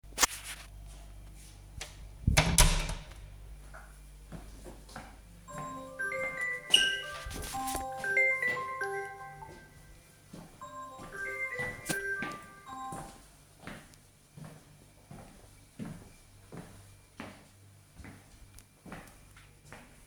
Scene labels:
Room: kitchen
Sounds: door, footsteps, phone ringing

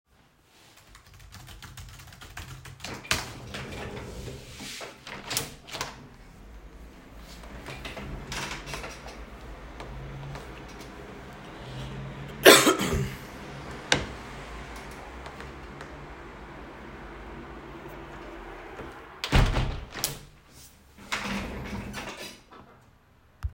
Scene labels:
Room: office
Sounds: keyboard typing, window (more than once)

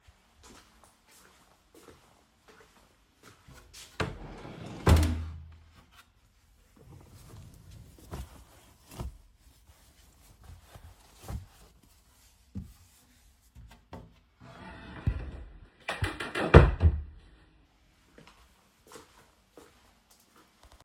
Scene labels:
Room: bedroom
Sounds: footsteps, wardrobe or drawer (more than once)

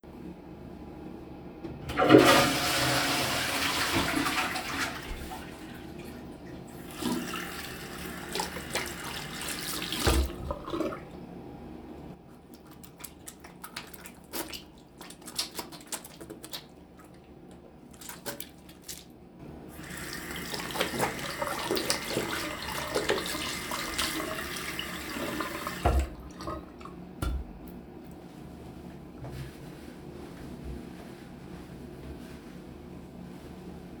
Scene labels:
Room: lavatory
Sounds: toilet flushing, running water

